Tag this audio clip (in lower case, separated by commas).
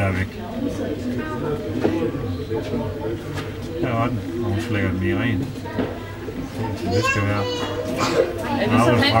speech